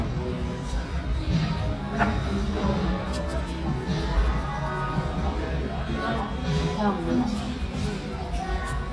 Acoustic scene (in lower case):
restaurant